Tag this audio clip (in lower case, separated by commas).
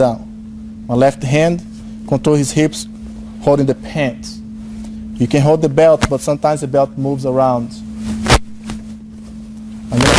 speech, inside a large room or hall